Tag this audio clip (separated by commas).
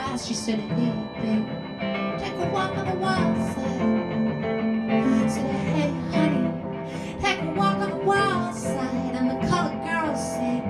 Music